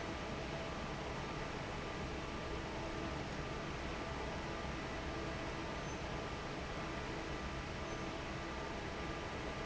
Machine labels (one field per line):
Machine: fan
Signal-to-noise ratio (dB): 0 dB